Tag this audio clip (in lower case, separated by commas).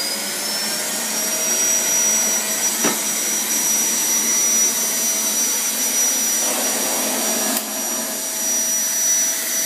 vacuum cleaner